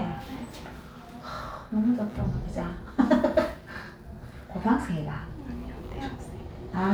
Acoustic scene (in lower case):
elevator